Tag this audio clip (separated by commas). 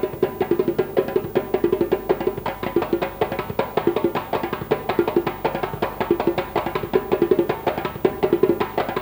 playing djembe